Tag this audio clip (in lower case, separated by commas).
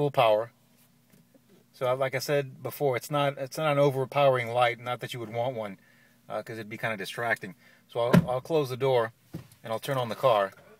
speech